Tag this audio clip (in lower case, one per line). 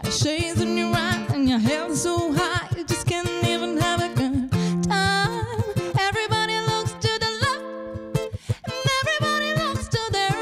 music